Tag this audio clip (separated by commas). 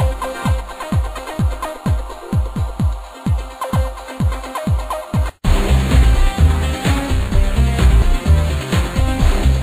Music